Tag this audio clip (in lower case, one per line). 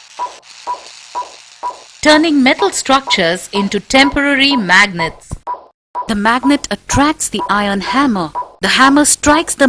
speech